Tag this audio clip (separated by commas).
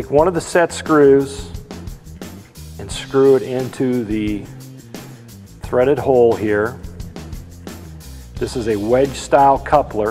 Speech, Music